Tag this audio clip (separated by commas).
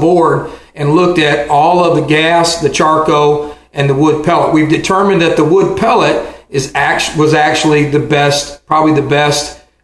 Speech